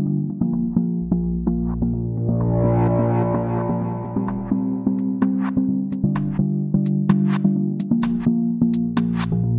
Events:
0.0s-9.5s: music

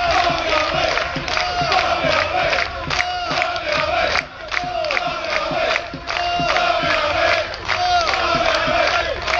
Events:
0.0s-0.7s: clapping
0.0s-1.1s: choir
0.0s-8.8s: music
0.0s-9.3s: crowd
0.8s-1.4s: clapping
1.3s-4.2s: choir
1.7s-2.2s: clapping
2.4s-3.0s: clapping
3.2s-3.8s: clapping
4.0s-4.6s: clapping
4.5s-7.4s: choir
4.8s-5.4s: clapping
5.6s-6.2s: clapping
6.4s-7.0s: clapping
7.2s-7.8s: clapping
7.7s-9.3s: choir
8.0s-8.6s: clapping
8.8s-9.3s: clapping

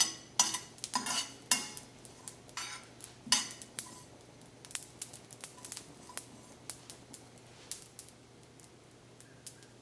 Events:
0.0s-1.8s: silverware
0.0s-9.8s: mechanisms
0.0s-9.8s: sizzle
2.0s-4.1s: silverware
5.4s-6.6s: silverware
9.2s-9.7s: bird call

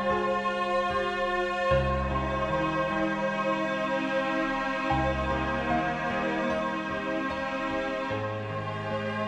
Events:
0.0s-9.2s: music

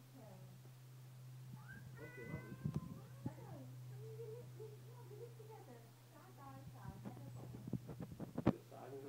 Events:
0.0s-9.0s: background noise
0.1s-0.5s: human voice
1.5s-1.8s: cat
1.9s-2.9s: meow
1.9s-2.5s: male speech
2.3s-2.8s: wind noise (microphone)
2.9s-9.0s: conversation
2.9s-3.6s: female speech
3.2s-3.3s: wind noise (microphone)
3.9s-4.4s: child speech
4.6s-5.9s: female speech
6.1s-7.5s: female speech
7.0s-8.5s: wind noise (microphone)
8.5s-9.0s: male speech

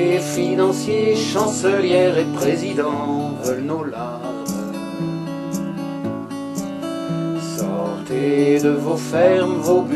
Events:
0.0s-4.7s: male singing
0.0s-9.9s: music
1.3s-1.4s: tick
2.3s-2.4s: tick
3.4s-3.5s: tick
4.4s-4.5s: tick
5.5s-5.6s: tick
6.5s-6.6s: tick
7.3s-9.9s: male singing
7.5s-7.6s: tick
8.5s-8.6s: tick
9.6s-9.7s: tick

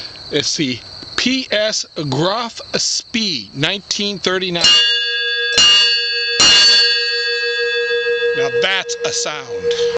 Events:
0.0s-9.9s: insect
0.0s-9.9s: wind
0.1s-0.2s: tick
0.3s-0.8s: man speaking
0.4s-0.4s: tick
0.7s-0.8s: tick
1.0s-1.1s: tick
1.2s-1.8s: man speaking
2.0s-2.6s: man speaking
2.8s-3.0s: man speaking
3.1s-3.5s: man speaking
3.6s-4.6s: man speaking
4.5s-8.9s: bell
8.4s-8.5s: man speaking
8.6s-8.9s: man speaking
9.1s-9.9s: man speaking

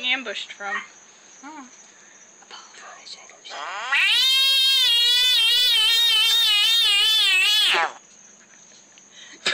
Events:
0.0s-0.8s: woman speaking
0.0s-9.5s: cricket
0.0s-9.5s: mechanisms
0.7s-0.9s: frog
1.4s-1.7s: woman speaking
1.8s-2.3s: breathing
2.5s-3.4s: whispering
3.4s-7.9s: frog
9.2s-9.4s: breathing
9.4s-9.5s: tick

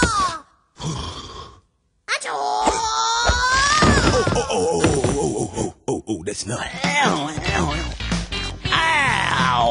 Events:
0.0s-0.6s: child speech
0.8s-1.6s: human voice
2.0s-4.4s: child speech
2.6s-2.9s: generic impact sounds
3.3s-4.4s: generic impact sounds
4.2s-7.9s: man speaking
4.7s-5.1s: generic impact sounds
6.8s-6.9s: generic impact sounds
7.3s-9.7s: music
8.6s-9.7s: child speech

